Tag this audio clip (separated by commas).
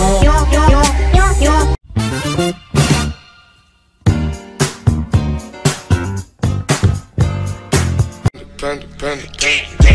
Music